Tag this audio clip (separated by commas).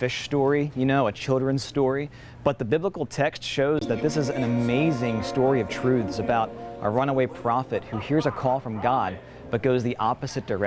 Music, Speech